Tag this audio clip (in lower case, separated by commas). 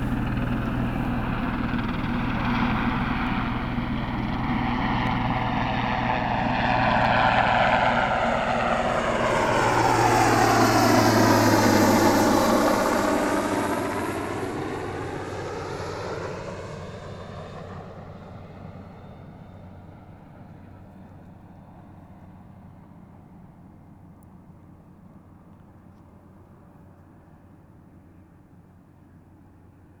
vehicle, aircraft